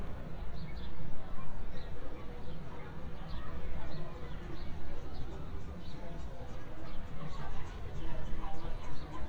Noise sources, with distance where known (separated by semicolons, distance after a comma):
large crowd, far